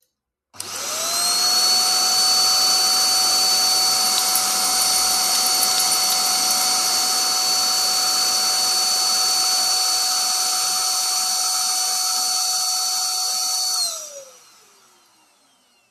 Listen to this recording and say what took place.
I pressed the record button with my mouse on my PC. Then turned on the vacuum cleaner, cleaned the floor and my keys dinged, because they were hanging on my hip.